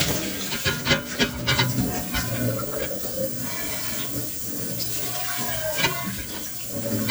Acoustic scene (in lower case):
kitchen